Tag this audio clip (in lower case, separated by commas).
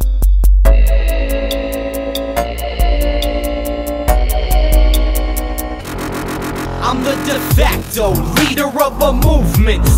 music